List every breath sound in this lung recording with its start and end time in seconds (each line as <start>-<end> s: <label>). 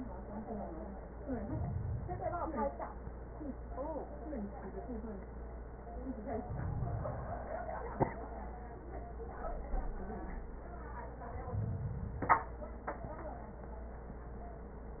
1.14-2.63 s: inhalation
6.26-7.45 s: inhalation
11.30-12.49 s: inhalation